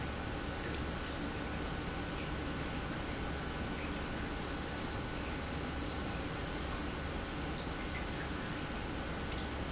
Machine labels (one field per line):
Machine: pump